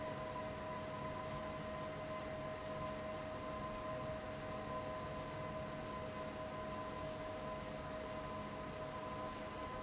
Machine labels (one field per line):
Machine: fan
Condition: abnormal